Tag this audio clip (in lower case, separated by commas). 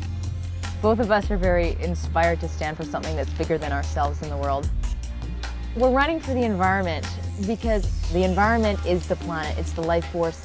music, speech